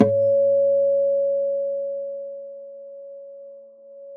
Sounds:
guitar, plucked string instrument, music, acoustic guitar, musical instrument

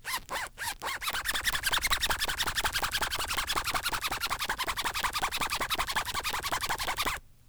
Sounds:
zipper (clothing), home sounds

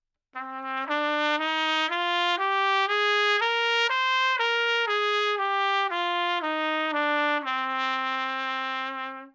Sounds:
trumpet, brass instrument, music, musical instrument

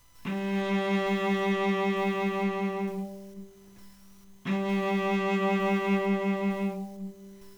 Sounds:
music, bowed string instrument, musical instrument

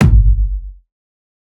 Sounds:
musical instrument, music, percussion, bass drum, drum

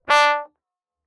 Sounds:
brass instrument, musical instrument, music

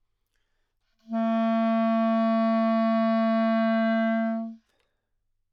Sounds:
woodwind instrument, music, musical instrument

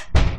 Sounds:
domestic sounds, door, slam

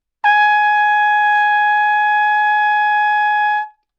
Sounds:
music, brass instrument, musical instrument, trumpet

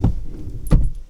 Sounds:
vehicle, motor vehicle (road), car

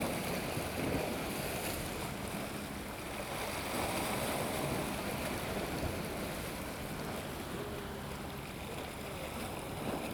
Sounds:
waves, ocean, water

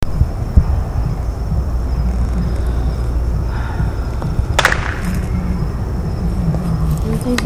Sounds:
fireworks, explosion

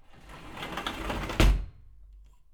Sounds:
home sounds, sliding door, slam, door

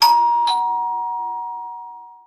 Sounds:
domestic sounds, doorbell, alarm, door

